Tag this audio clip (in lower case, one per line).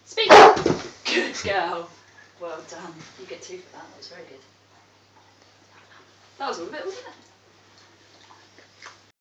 yip
speech